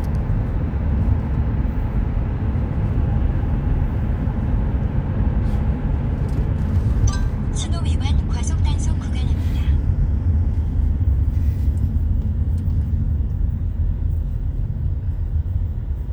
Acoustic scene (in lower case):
car